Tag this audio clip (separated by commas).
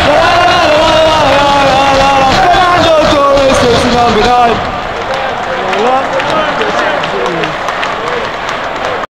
Male singing, Speech